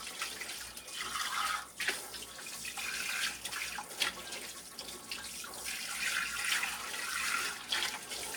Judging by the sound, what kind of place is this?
kitchen